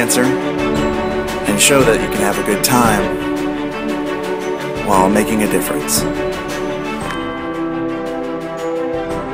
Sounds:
Speech, Music

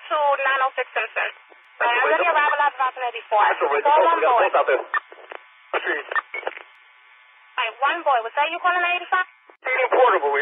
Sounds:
police radio chatter

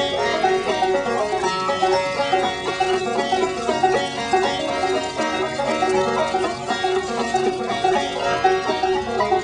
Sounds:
Music, Engine

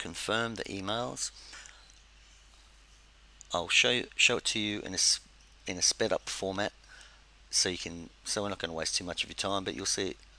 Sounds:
Speech

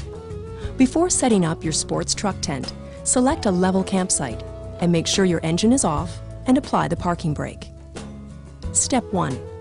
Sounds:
Music, Speech

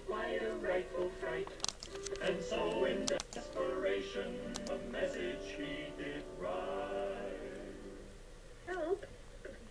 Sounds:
Music

